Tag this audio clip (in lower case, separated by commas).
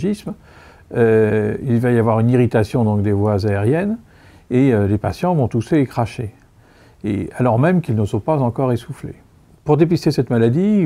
speech